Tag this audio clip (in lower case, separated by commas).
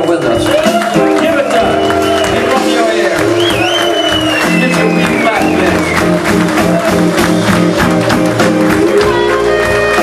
music, speech